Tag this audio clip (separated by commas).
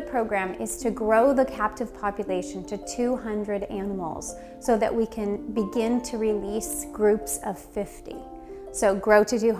Speech, Music